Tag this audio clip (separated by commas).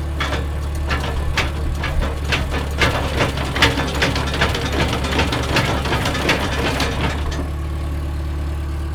Engine, Mechanisms